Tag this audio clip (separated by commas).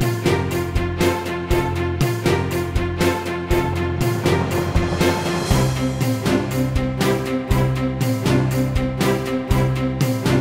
Music